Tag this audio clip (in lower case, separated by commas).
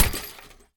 glass, shatter